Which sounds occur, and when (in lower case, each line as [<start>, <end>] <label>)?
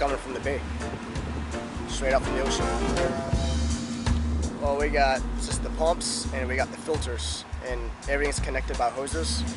[0.00, 0.64] man speaking
[0.00, 9.55] music
[0.01, 4.45] water
[0.40, 1.06] mechanisms
[1.84, 2.60] man speaking
[4.36, 9.55] wind
[4.56, 5.19] man speaking
[5.35, 7.42] man speaking
[7.61, 9.53] man speaking
[9.04, 9.55] mechanisms